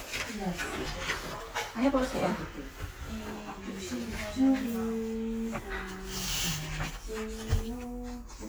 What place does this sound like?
crowded indoor space